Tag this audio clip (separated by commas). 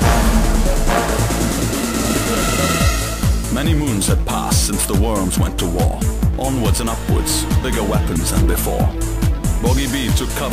Music, Speech